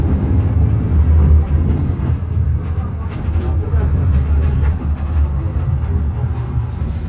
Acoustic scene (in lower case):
bus